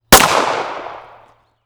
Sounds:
Explosion, Gunshot

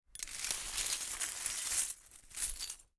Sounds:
Glass

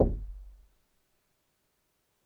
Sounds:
Door, Knock, Wood, home sounds

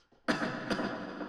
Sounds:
Respiratory sounds, Cough

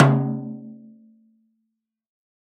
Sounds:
Snare drum, Musical instrument, Music, Drum, Percussion

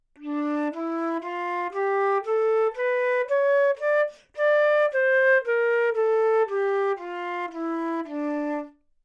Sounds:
woodwind instrument, Musical instrument, Music

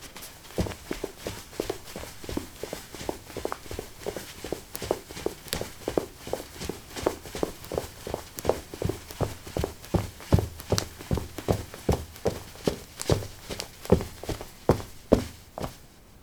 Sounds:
Run

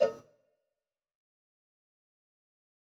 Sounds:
Cowbell, Bell

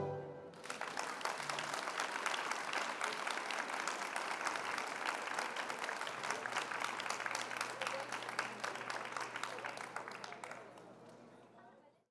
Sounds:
Human group actions, Applause

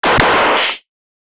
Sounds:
Gunshot, Explosion

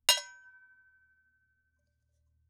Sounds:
dishes, pots and pans, silverware, home sounds

